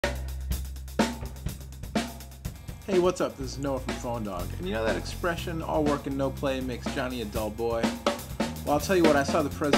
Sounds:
Snare drum, Cymbal, inside a small room, Speech, Music

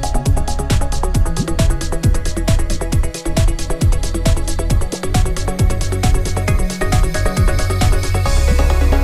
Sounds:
Music

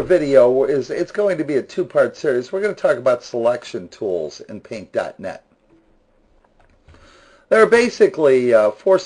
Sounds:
Speech

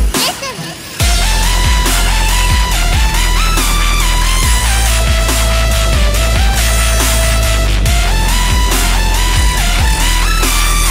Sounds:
Music

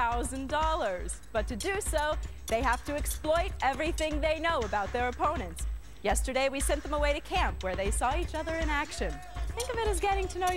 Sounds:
Speech, Music

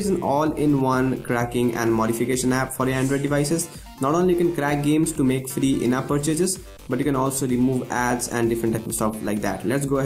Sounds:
Music, Speech

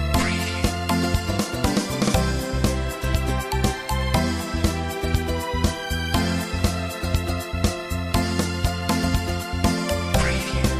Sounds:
Wedding music, Happy music, Music, Theme music

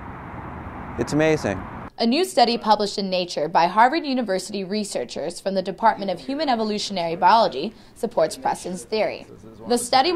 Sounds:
outside, urban or man-made, Speech

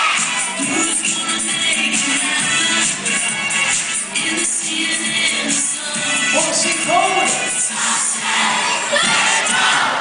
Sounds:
Music, Speech

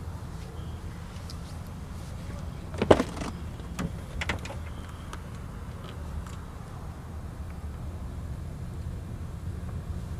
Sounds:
outside, rural or natural

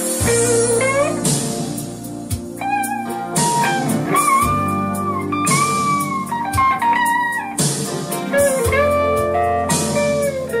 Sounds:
Music

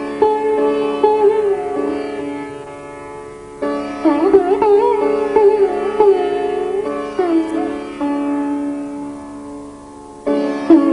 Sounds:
Music, Bowed string instrument

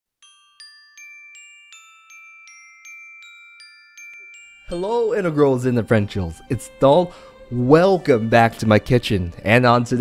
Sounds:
Glockenspiel, Mallet percussion, xylophone

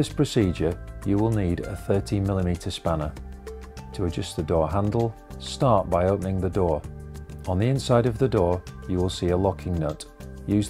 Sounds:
Music, Speech

